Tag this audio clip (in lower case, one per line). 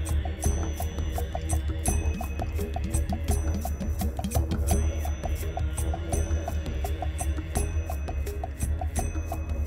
music